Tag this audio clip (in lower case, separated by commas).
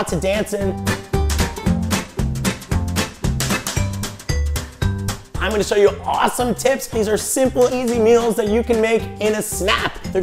speech, music